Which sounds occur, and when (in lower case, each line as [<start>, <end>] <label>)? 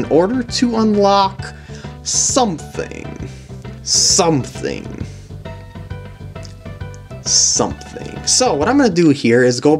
[0.00, 1.48] man speaking
[0.00, 9.75] music
[1.46, 1.94] breathing
[1.71, 1.79] tick
[2.00, 3.24] man speaking
[3.14, 3.58] breathing
[3.80, 4.99] man speaking
[4.97, 5.36] breathing
[6.38, 6.48] tick
[6.88, 6.96] tick
[7.20, 9.75] man speaking
[7.76, 7.85] tick
[8.97, 9.06] tick